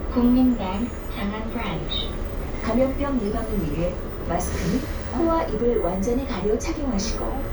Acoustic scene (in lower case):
bus